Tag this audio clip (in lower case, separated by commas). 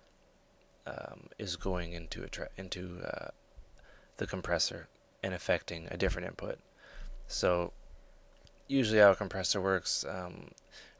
speech